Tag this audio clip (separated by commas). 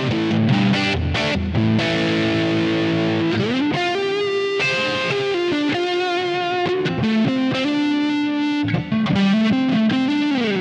Music